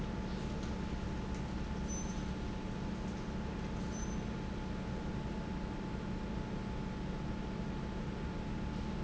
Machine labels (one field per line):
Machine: fan